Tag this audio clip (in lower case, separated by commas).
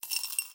coin (dropping), domestic sounds, glass